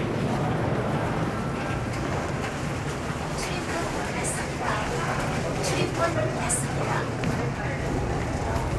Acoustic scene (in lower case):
subway station